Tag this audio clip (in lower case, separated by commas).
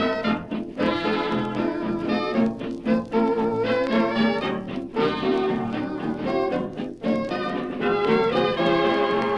music, blues, orchestra